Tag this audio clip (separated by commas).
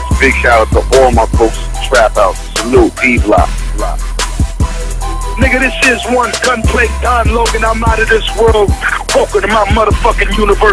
Music